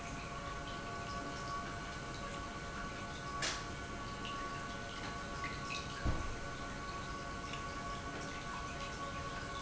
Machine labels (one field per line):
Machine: pump